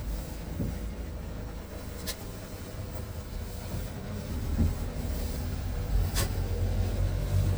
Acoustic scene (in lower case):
car